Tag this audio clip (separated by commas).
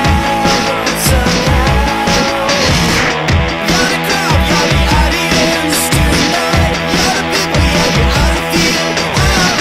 Music